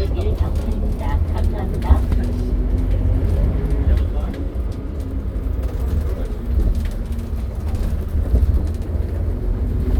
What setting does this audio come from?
bus